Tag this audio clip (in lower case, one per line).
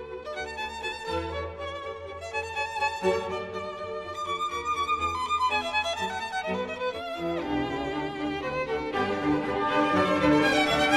fiddle
music
musical instrument